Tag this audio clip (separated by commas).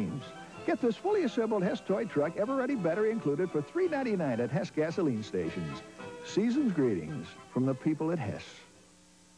Speech